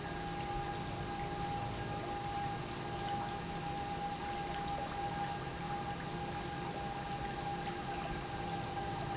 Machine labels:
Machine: pump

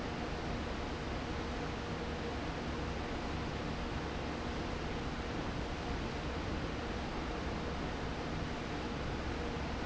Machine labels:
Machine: fan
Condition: abnormal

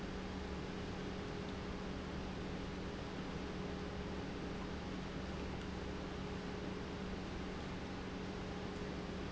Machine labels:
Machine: pump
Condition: normal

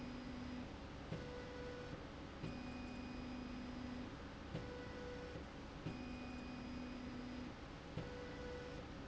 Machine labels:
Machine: slide rail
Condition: normal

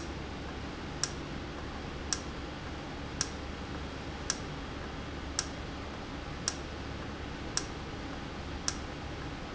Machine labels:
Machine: valve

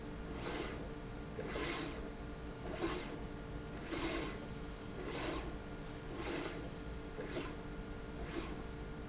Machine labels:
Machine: slide rail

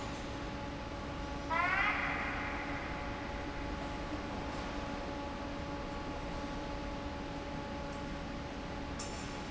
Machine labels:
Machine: fan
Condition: normal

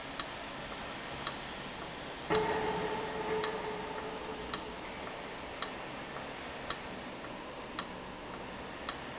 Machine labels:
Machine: valve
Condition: abnormal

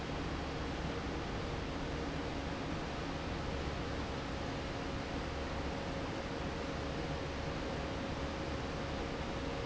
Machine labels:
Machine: fan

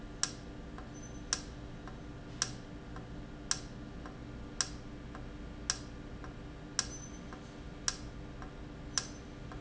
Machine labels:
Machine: valve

